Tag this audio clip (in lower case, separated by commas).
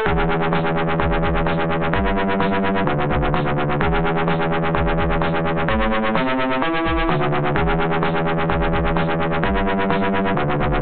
music